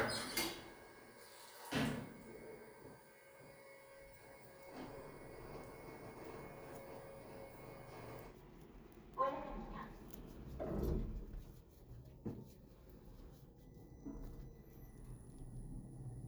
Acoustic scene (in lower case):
elevator